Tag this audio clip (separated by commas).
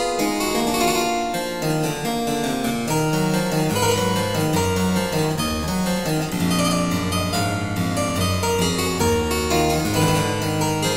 Music, Classical music, Piano